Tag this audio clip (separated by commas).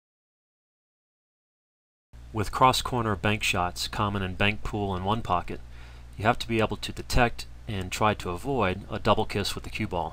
striking pool